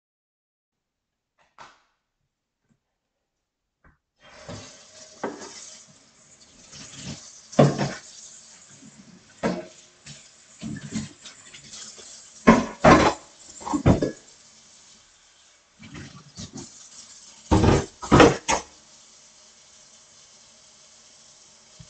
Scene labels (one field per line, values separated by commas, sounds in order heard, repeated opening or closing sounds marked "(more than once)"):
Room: kitchen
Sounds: light switch, running water, cutlery and dishes